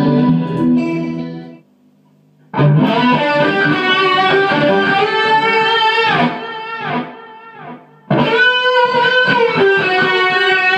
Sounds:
music, musical instrument

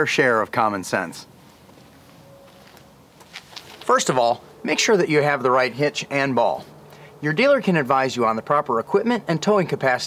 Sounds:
speech

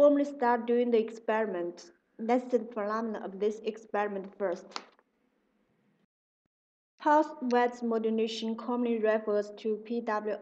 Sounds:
speech

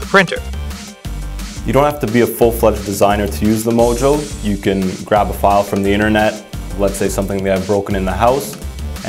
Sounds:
speech, music

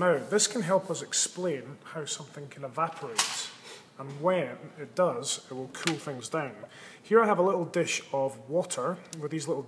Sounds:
speech

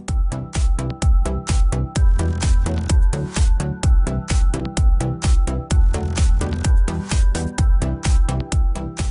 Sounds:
music, speech

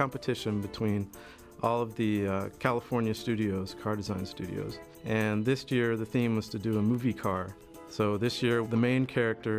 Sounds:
music, speech

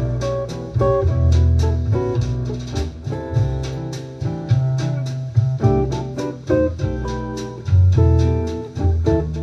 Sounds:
strum, guitar, music, acoustic guitar, plucked string instrument, musical instrument

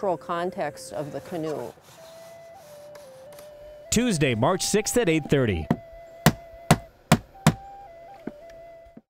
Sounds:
speech, music

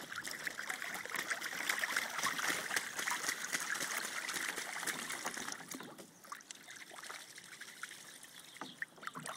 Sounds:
water

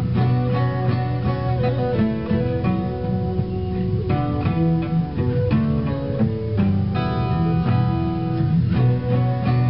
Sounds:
strum, acoustic guitar, music, plucked string instrument, musical instrument, guitar

